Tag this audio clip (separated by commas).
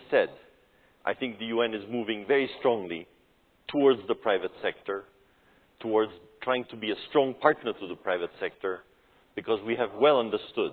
monologue, man speaking, Speech